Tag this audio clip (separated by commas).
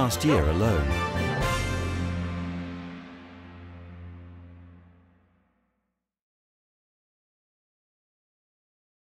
Speech, Music